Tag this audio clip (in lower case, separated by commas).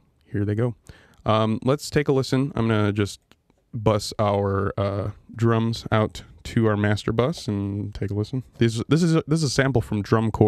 speech